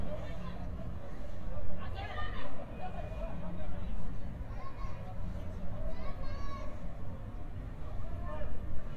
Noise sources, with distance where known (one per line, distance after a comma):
person or small group shouting, far